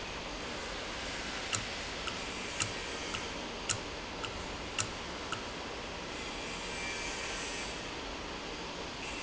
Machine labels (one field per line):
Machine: valve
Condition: normal